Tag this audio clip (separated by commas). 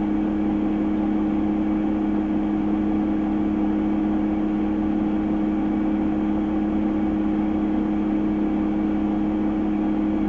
Vehicle